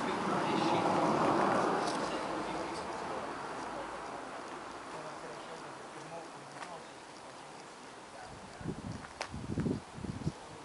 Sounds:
Speech

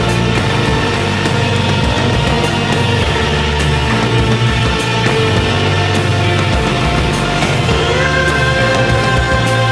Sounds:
Music

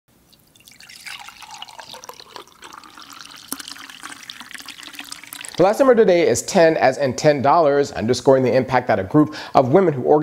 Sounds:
Water, faucet

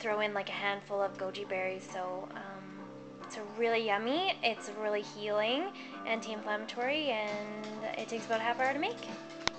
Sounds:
Music, Speech

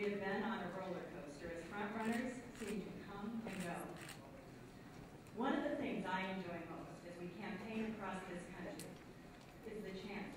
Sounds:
woman speaking, Speech

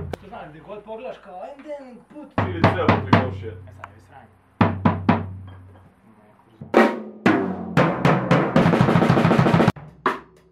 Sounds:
Speech, Drum kit, Musical instrument, Drum, Music, Bass drum

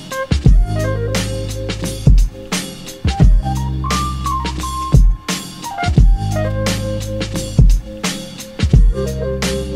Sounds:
Music

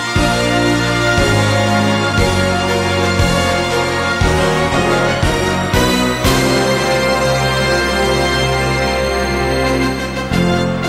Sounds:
Theme music

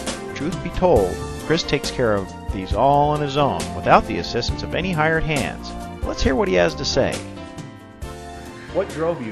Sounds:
Music, Speech

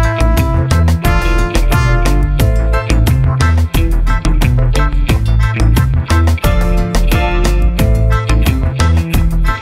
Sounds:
Music

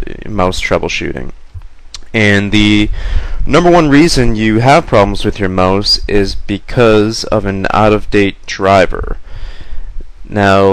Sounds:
Speech

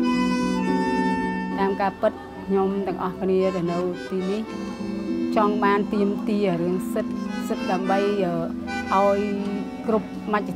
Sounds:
Speech, Music

